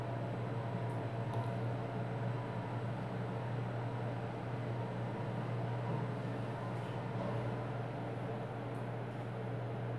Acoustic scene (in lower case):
elevator